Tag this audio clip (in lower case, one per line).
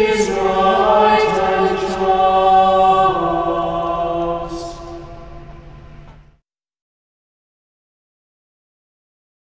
mantra